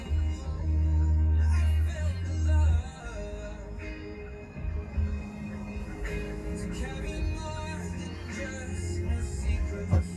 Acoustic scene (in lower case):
car